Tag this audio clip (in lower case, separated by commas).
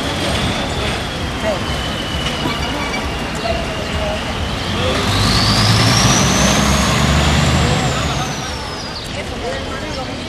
truck, vehicle, speech